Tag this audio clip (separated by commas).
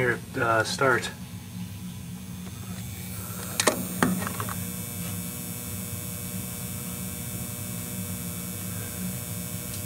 Speech